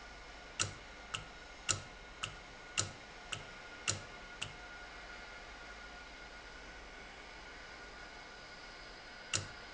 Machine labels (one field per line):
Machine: valve